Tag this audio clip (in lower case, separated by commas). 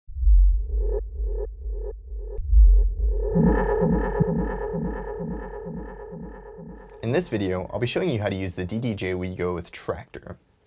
music, speech